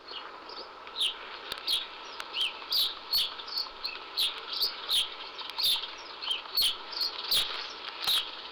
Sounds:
bird vocalization, wild animals, animal, bird

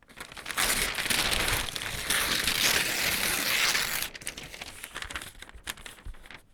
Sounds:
tearing

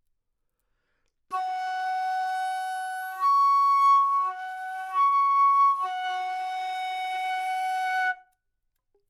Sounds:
musical instrument, woodwind instrument, music

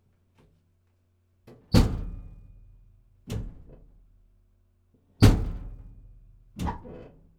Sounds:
door, home sounds

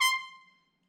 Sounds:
trumpet, brass instrument, musical instrument, music

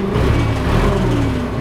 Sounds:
engine, revving

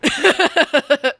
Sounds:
human voice, laughter

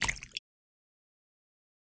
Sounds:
liquid, splash

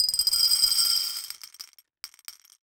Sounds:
glass

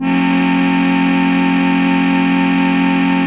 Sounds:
keyboard (musical), organ, music, musical instrument

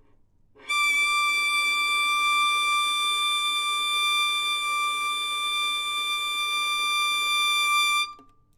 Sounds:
musical instrument, music, bowed string instrument

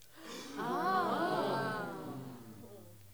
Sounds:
breathing, respiratory sounds, gasp

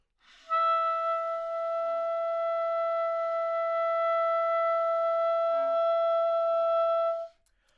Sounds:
music, musical instrument, wind instrument

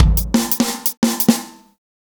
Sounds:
musical instrument, music, percussion, drum kit

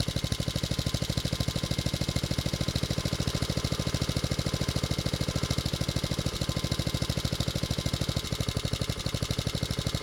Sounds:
engine

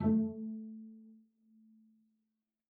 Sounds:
music, bowed string instrument, musical instrument

